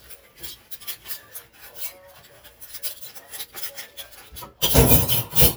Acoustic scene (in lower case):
kitchen